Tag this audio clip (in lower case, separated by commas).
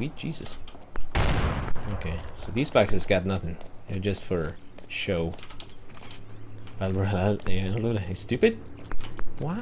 speech, gunshot